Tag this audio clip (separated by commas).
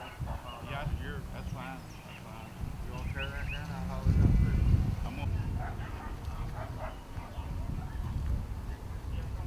Speech